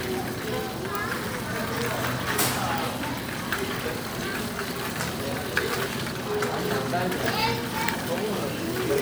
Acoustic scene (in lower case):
crowded indoor space